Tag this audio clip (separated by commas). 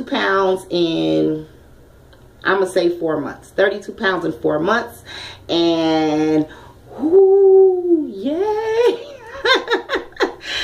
Speech